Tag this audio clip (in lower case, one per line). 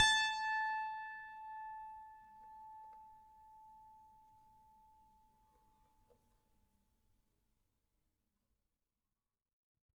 piano
musical instrument
keyboard (musical)
music